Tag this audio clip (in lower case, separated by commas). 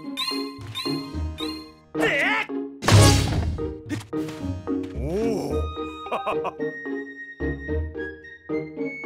music, inside a large room or hall